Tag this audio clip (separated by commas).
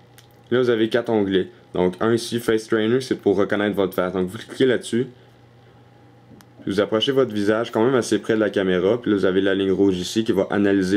Speech